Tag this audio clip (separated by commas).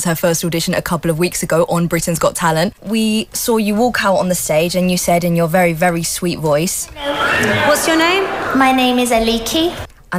Speech